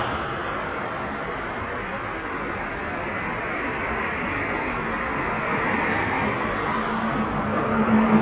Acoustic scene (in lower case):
street